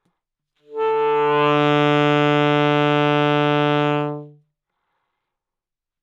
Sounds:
Musical instrument, Music, Wind instrument

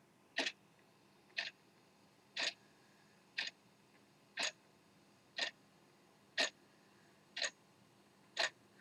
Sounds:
Tick-tock, Clock, Mechanisms

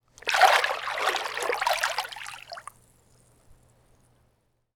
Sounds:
Splash, Liquid

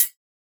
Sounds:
Cymbal, Music, Hi-hat, Percussion, Musical instrument

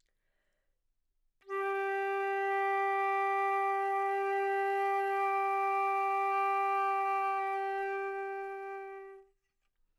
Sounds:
Musical instrument, Music, woodwind instrument

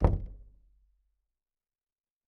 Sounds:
Door, Wood, Knock, home sounds

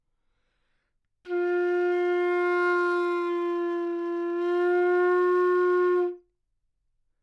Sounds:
Music, Musical instrument, woodwind instrument

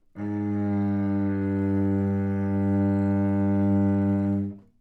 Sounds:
Music, Musical instrument, Bowed string instrument

